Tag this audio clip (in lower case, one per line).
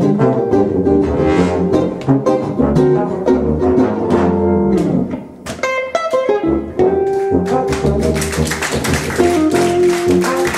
trombone
brass instrument